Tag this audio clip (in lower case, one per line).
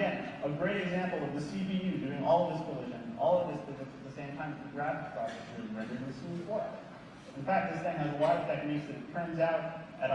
speech